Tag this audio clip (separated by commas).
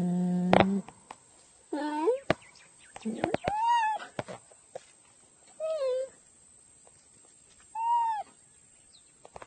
cheetah chirrup